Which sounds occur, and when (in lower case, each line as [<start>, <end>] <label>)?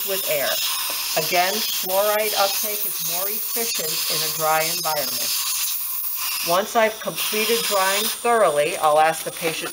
[0.00, 0.52] woman speaking
[0.00, 9.72] dental drill
[0.81, 0.96] generic impact sounds
[1.11, 1.61] woman speaking
[1.74, 3.39] woman speaking
[3.54, 5.29] woman speaking
[6.42, 7.16] woman speaking
[7.29, 8.05] woman speaking
[8.19, 9.12] woman speaking
[9.24, 9.72] woman speaking
[9.41, 9.56] generic impact sounds